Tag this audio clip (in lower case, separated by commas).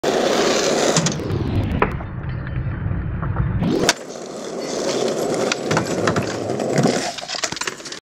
skateboard